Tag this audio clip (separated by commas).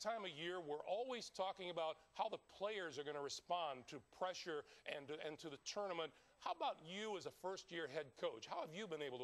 Speech